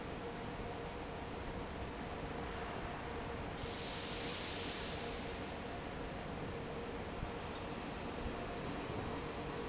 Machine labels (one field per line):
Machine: fan